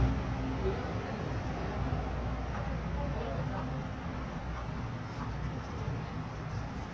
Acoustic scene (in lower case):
residential area